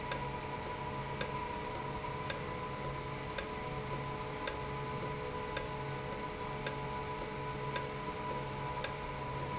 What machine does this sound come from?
valve